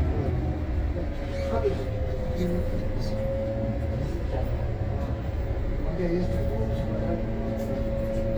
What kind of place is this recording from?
bus